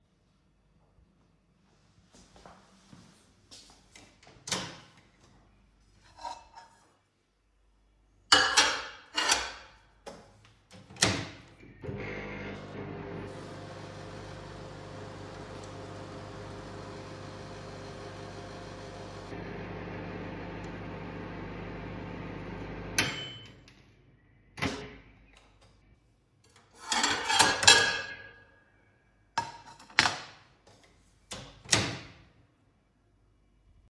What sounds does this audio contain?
footsteps, microwave, cutlery and dishes